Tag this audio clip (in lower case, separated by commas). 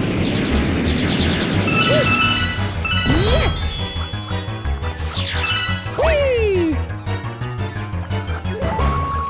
music